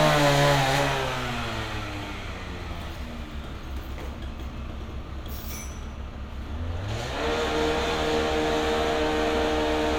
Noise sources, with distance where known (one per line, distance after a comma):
chainsaw, near